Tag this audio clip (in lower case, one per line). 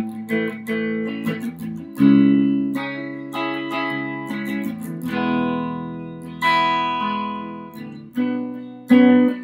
plucked string instrument
strum
playing acoustic guitar
music
musical instrument
acoustic guitar
guitar